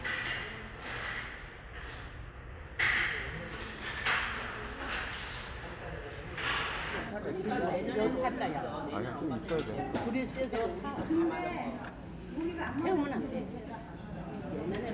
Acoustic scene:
restaurant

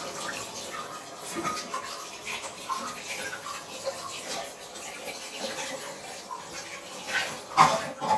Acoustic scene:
kitchen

